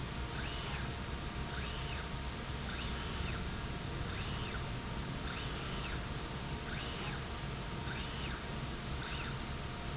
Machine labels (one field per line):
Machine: slide rail